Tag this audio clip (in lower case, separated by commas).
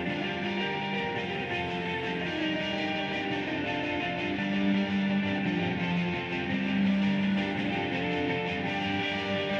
music